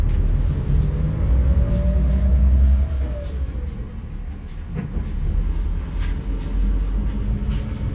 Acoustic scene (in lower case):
bus